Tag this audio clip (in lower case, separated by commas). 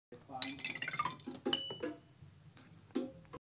speech, music